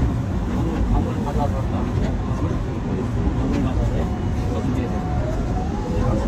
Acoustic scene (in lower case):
subway train